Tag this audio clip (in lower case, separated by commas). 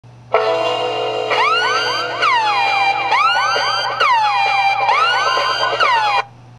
music